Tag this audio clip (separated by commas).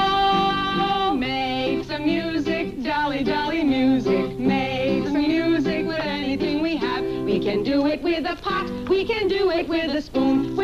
Music, Happy music